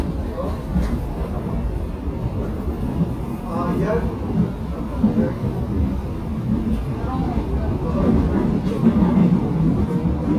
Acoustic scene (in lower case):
subway train